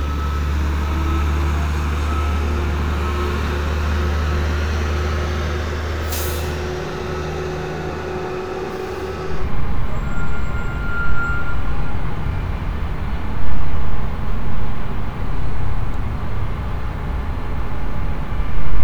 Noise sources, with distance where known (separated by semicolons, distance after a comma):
large-sounding engine